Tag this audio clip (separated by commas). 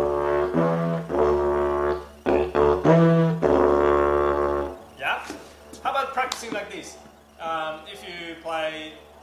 Music, Didgeridoo, Speech